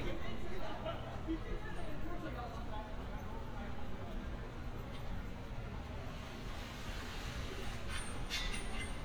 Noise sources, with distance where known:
person or small group talking; person or small group shouting

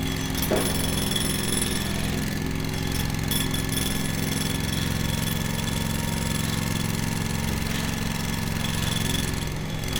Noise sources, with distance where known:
jackhammer, near

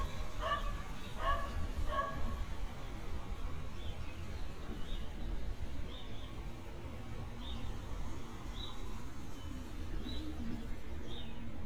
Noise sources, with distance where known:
dog barking or whining

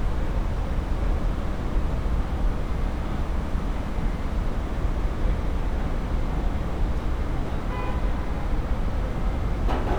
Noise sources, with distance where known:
car horn

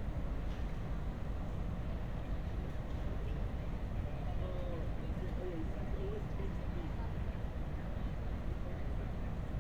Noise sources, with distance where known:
engine of unclear size, far; unidentified human voice

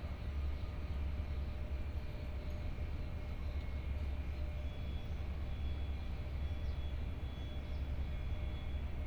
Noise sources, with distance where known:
reverse beeper, far

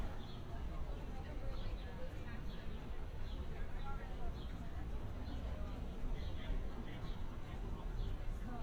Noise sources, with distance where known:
person or small group talking

